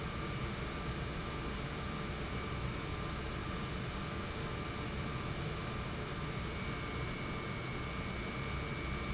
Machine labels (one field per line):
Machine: pump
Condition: normal